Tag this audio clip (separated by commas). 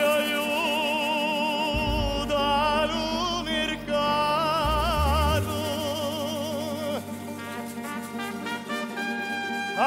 Singing, Brass instrument, Music, Trombone